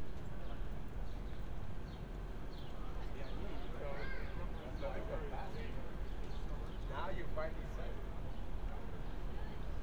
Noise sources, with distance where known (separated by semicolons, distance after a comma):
person or small group talking, near